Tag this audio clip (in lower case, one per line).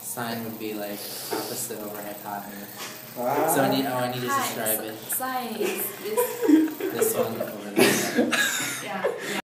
speech